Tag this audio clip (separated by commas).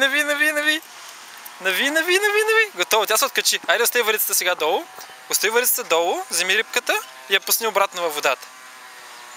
Speech